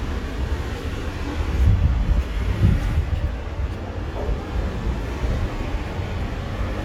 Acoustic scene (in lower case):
street